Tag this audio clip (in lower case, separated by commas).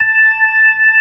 music, organ, keyboard (musical), musical instrument